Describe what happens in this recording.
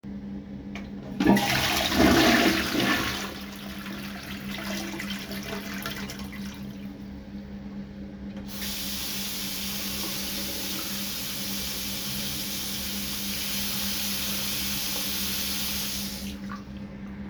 The phone was placed in a fixed position. I turned on running water and then flushed the toilet. Both sounds are clearly audible.